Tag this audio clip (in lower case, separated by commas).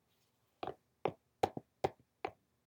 footsteps